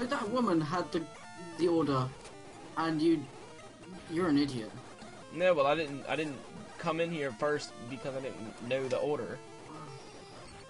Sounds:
speech

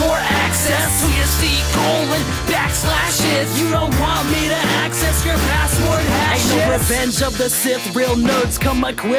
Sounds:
music

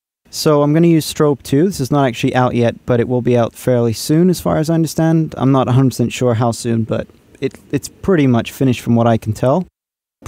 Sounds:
speech

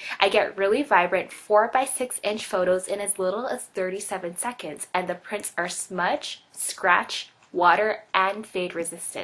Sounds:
speech

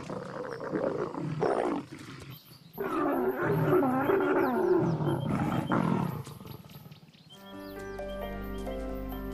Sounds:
music
roaring cats
lions growling
animal
wild animals
roar
speech

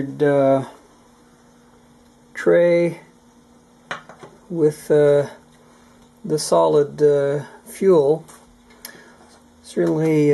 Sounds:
speech

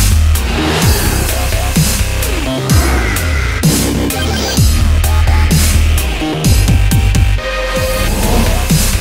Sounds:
music

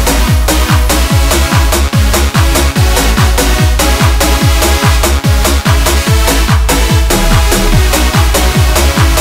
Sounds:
music

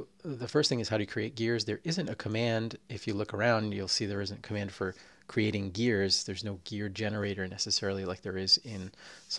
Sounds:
speech

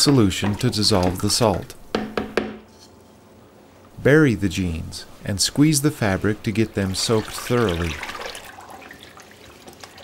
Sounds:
inside a small room
water
speech

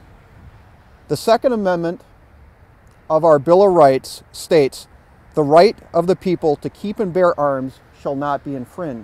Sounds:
speech

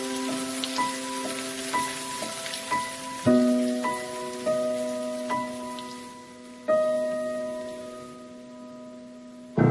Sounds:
raining

